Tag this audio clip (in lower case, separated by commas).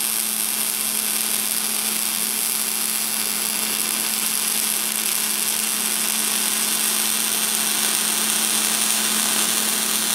tools